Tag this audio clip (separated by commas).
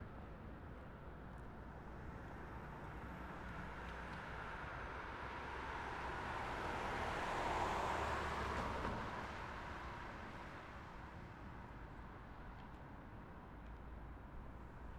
Motor vehicle (road), Vehicle